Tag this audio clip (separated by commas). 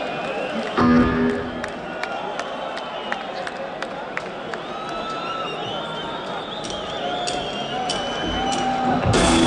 Music